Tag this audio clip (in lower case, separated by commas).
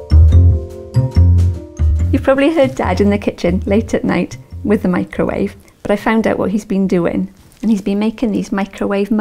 music, speech